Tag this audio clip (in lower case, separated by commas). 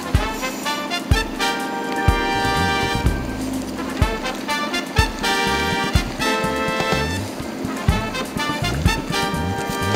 boat, music